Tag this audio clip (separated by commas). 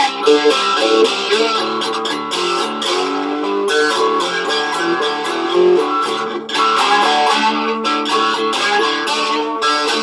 Musical instrument, Music, Plucked string instrument, Strum, Guitar